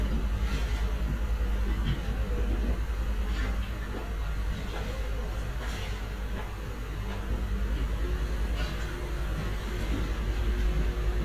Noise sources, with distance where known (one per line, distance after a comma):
engine of unclear size